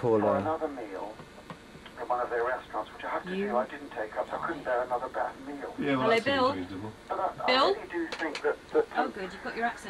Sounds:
Speech, Radio

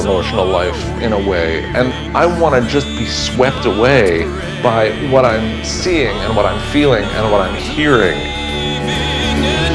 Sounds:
Music, Speech

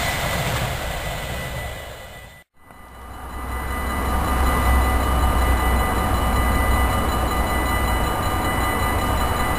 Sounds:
Vehicle

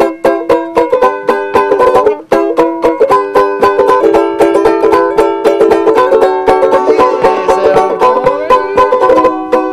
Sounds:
Music, playing banjo, Banjo, Musical instrument

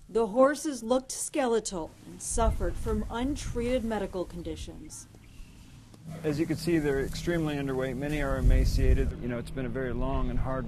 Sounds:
Speech

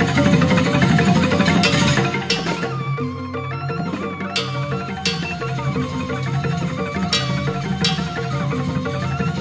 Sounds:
Music, Folk music

